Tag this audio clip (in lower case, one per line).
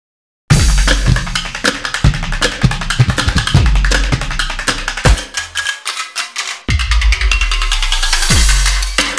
music
percussion